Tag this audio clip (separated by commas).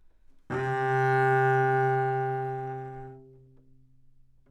Music, Bowed string instrument, Musical instrument